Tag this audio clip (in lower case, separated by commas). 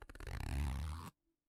home sounds, zipper (clothing)